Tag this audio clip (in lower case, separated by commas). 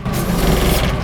mechanisms, engine